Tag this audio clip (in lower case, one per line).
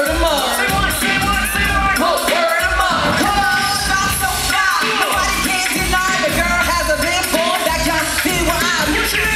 music